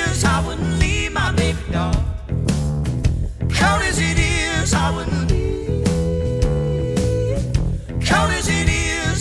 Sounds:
music

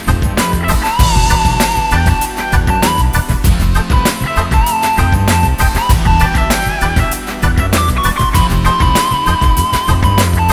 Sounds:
music

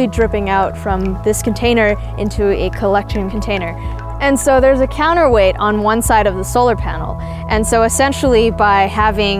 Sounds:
music
speech

